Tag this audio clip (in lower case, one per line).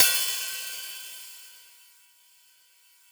hi-hat
music
percussion
musical instrument
cymbal